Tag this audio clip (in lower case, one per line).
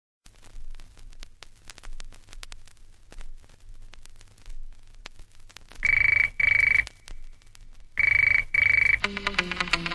music